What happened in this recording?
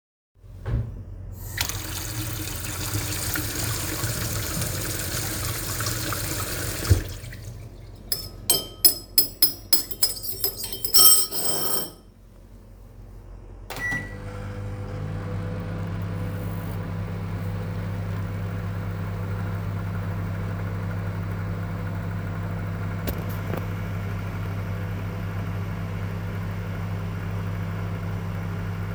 i washed my hands, mixed my food and put it in the microwave